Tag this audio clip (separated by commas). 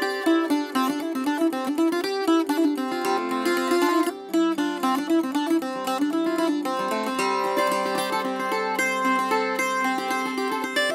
Musical instrument, Plucked string instrument, Music, Acoustic guitar, Guitar, Strum